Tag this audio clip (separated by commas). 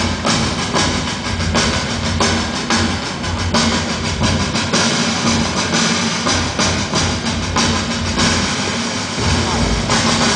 Music